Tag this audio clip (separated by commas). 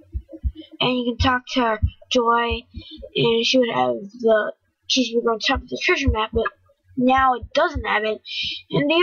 Speech